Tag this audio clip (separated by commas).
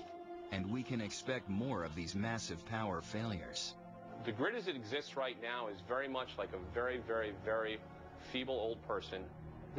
Speech, Music